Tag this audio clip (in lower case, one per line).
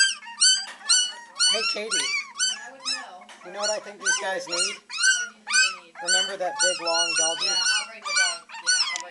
whimper (dog)
yip
domestic animals
animal
speech
dog